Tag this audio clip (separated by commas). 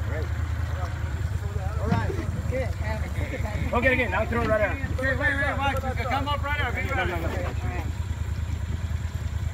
alligators